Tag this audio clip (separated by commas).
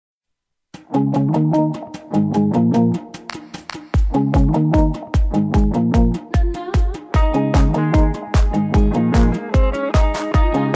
Bass guitar, Music